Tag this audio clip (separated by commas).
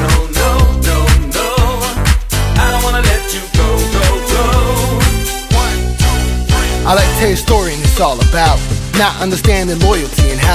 Music